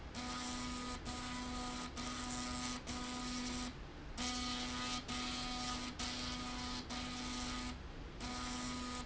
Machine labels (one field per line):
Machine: slide rail